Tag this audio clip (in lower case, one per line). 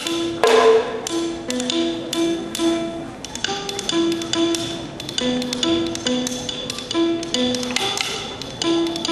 folk music
music